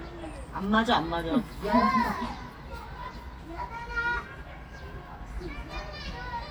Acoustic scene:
park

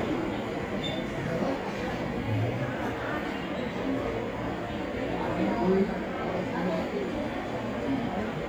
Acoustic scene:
cafe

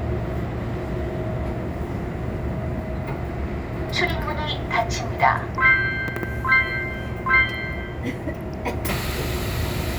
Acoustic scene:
subway train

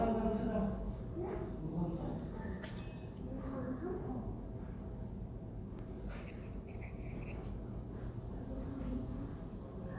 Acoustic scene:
elevator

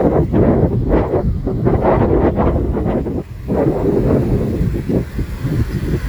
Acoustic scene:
park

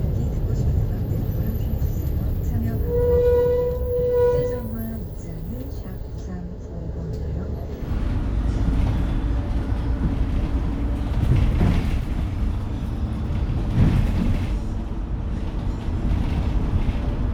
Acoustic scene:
bus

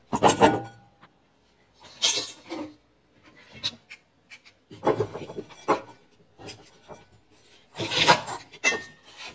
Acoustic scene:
kitchen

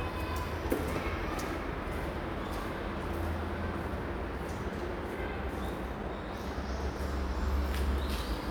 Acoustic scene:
park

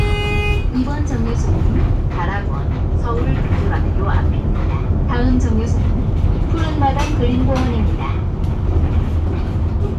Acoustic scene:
bus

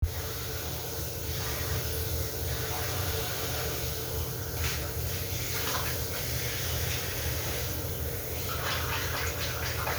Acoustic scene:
restroom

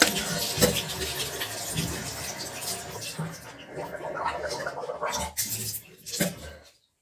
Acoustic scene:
restroom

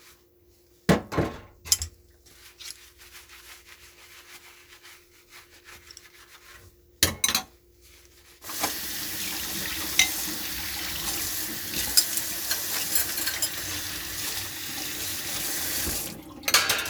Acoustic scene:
kitchen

